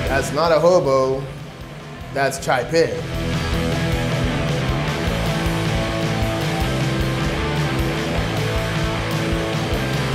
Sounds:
speech
music

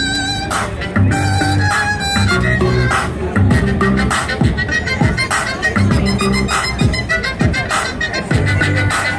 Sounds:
violin

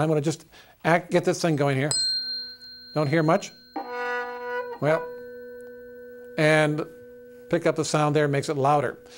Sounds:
tuning fork

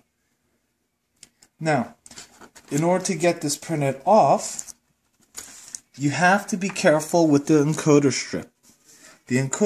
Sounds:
speech

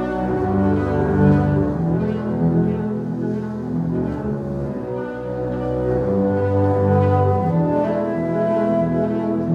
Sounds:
musical instrument
inside a large room or hall
classical music
bowed string instrument
music
cello

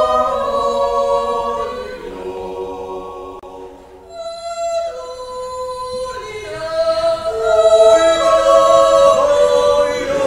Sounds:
yodelling

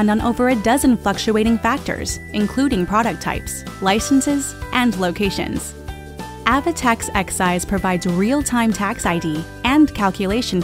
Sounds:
speech
music

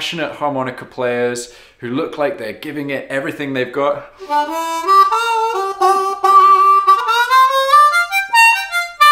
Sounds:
playing harmonica

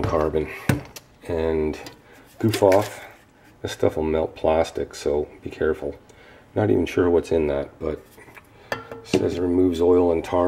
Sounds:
speech
inside a small room

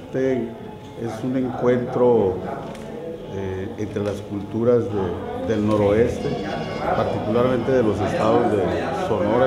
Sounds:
music
speech

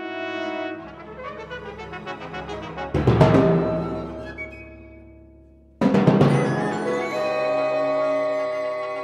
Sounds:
orchestra

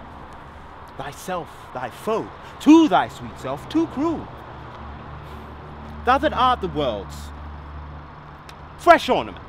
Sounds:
speech

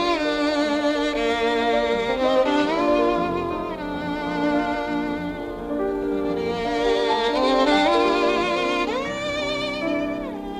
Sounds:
music
musical instrument
fiddle

